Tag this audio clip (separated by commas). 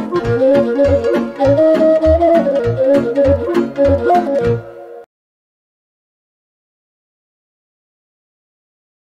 Music, woodwind instrument